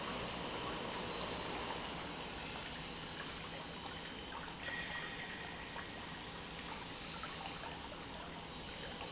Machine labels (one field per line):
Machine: pump